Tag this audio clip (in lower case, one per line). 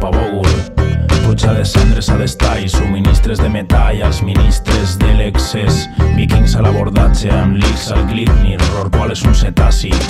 music